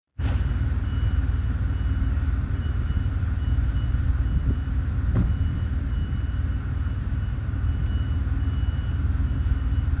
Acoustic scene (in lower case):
residential area